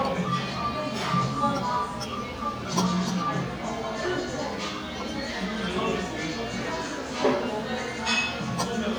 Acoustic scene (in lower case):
cafe